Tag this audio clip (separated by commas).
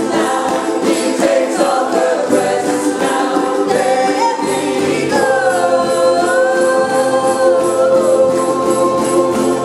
Gospel music, Ukulele, Singing, Music